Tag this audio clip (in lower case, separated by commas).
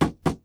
wood, tap